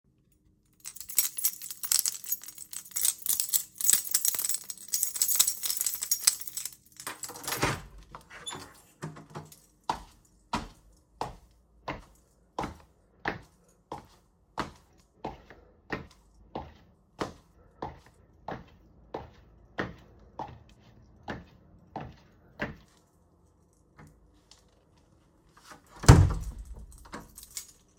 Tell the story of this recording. I took my keys out of my pocket and jingled them while searching for the right one. I unlocked and opened the front door then walked through the hallway with audible footsteps before closing the door behind me.